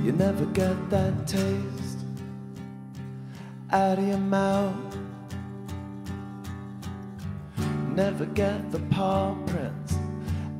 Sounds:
Music

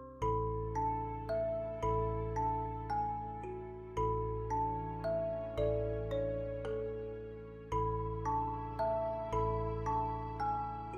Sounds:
Music

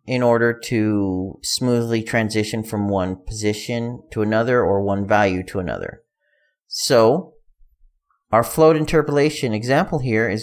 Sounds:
Speech

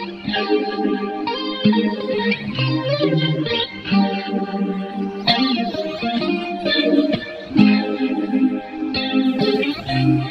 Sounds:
Music

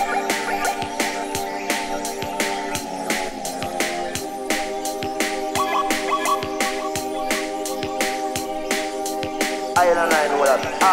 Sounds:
Music

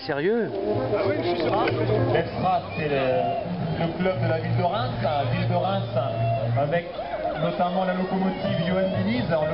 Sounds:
Speech, Run, Music, outside, rural or natural

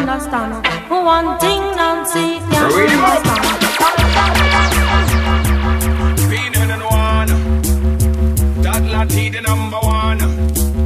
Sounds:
Music

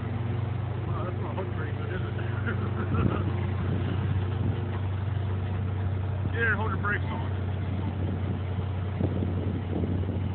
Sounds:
Vehicle, Speech

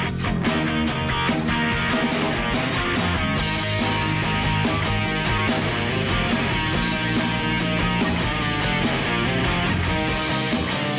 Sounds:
Rock and roll, Music

